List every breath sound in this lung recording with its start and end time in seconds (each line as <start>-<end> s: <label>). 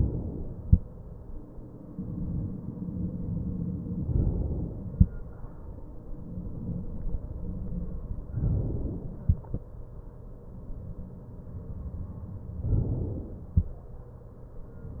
4.03-4.95 s: inhalation
8.39-9.21 s: inhalation
12.63-13.46 s: inhalation